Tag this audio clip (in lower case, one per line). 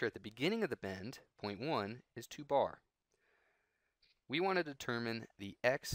speech